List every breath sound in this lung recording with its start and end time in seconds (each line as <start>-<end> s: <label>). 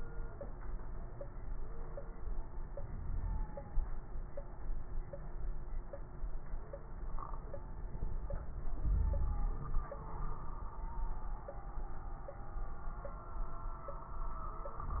2.72-3.46 s: inhalation
2.72-3.46 s: crackles
8.76-9.62 s: inhalation
8.76-9.62 s: wheeze